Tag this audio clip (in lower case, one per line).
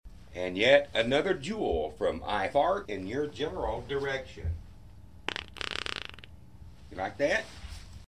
fart